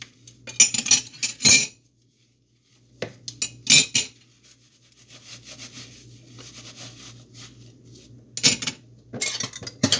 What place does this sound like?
kitchen